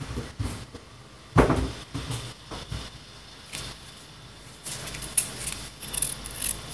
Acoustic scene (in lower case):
kitchen